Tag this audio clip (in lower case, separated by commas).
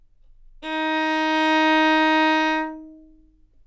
bowed string instrument, musical instrument, music